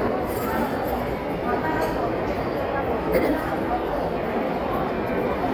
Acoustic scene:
crowded indoor space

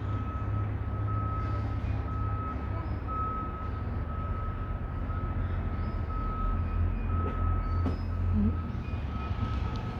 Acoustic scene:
residential area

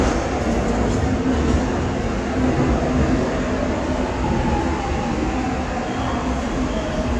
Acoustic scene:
subway station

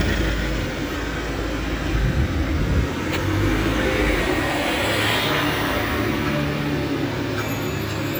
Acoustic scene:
residential area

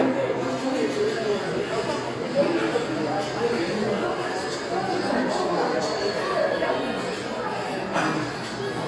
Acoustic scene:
crowded indoor space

